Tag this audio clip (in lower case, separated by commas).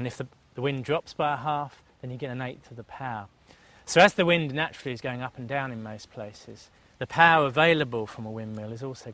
speech